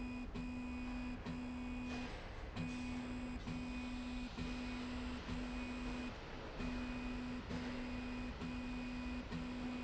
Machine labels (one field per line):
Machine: slide rail